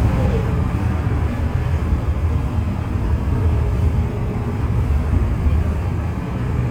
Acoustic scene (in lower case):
bus